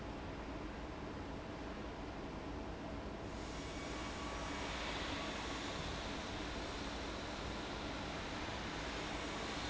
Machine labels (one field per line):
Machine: fan